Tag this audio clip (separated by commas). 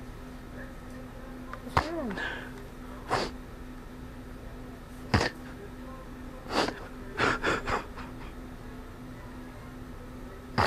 Crying, Speech